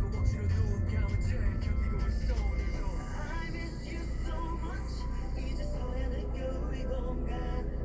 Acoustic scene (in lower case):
car